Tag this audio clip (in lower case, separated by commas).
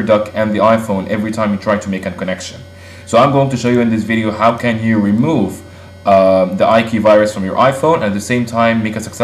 speech